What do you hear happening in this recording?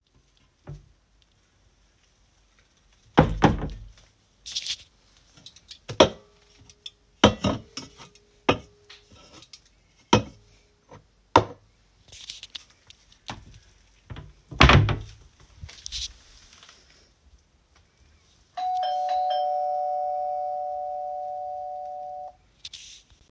I opened and closed the wardrobe, moved some items inside, and the doorbell rang.